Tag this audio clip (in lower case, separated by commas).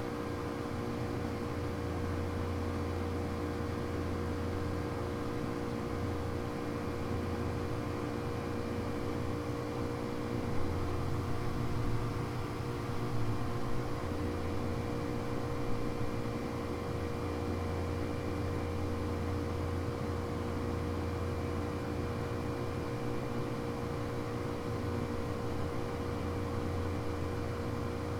mechanisms